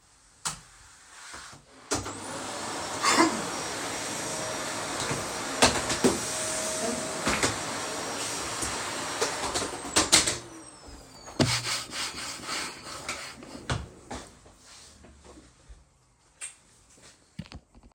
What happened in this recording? I opened the lights and started vaccuuming while coughing. I then cleaned the surface of the table